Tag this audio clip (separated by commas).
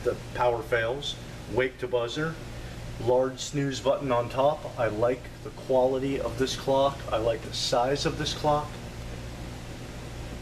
Speech